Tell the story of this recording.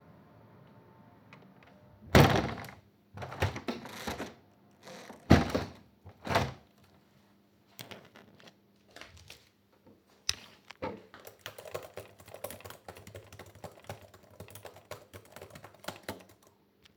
I opened a window and let it stay open briefly. Afterward the window was closed. I then sat at a desk and typed on a keyboard.